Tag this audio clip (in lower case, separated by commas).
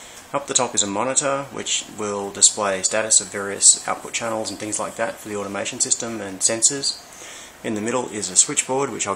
speech